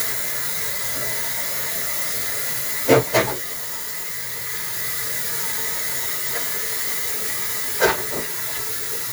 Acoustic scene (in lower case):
kitchen